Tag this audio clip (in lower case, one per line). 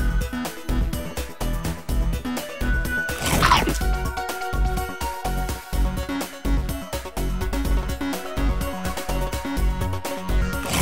music